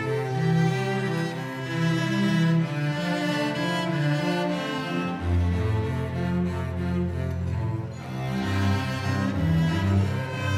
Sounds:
music
musical instrument
cello

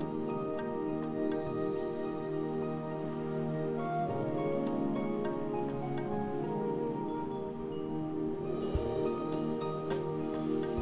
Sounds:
music

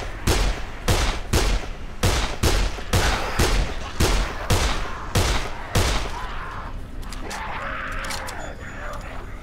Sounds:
fusillade

